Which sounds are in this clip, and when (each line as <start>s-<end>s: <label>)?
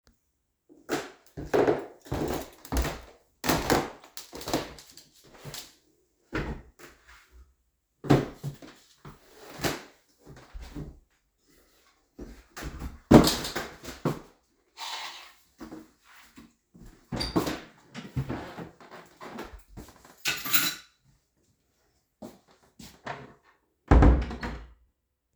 0.8s-6.7s: footsteps
17.1s-18.8s: door
17.3s-17.5s: footsteps
20.2s-20.8s: keys
22.2s-23.3s: footsteps
23.9s-24.7s: door